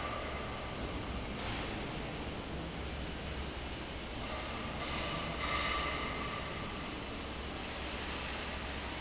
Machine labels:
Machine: fan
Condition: abnormal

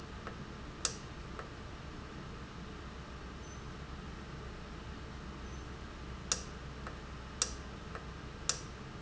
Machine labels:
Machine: valve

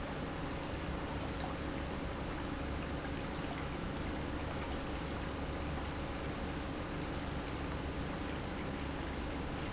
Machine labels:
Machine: pump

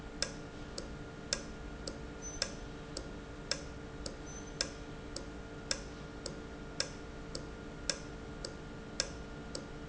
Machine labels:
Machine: valve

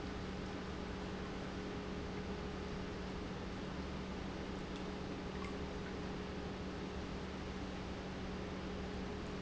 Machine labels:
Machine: pump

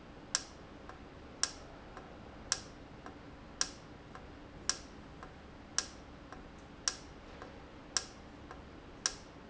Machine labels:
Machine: valve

